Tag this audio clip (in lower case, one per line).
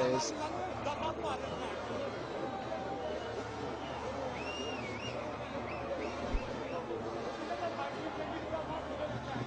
speech